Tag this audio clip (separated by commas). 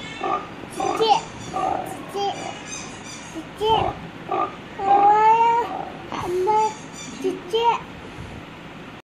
Speech, Oink